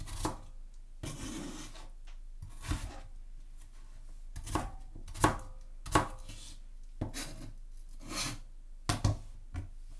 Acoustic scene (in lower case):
kitchen